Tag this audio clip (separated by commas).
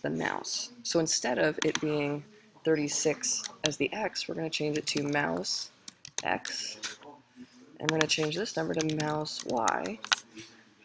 Speech